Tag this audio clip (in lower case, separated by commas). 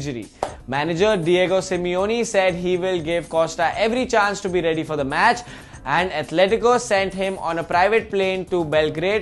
music, speech